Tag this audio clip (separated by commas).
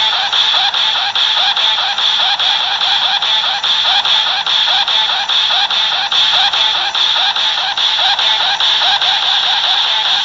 Music